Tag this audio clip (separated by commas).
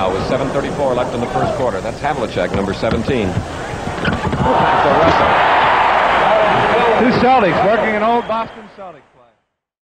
Speech